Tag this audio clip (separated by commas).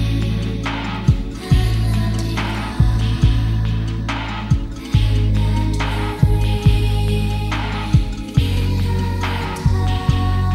Sound effect, Music